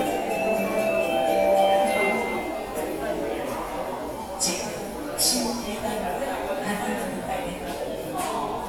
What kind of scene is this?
subway station